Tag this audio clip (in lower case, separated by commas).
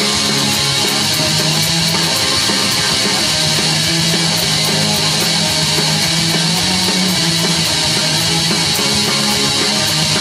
music, guitar, musical instrument, plucked string instrument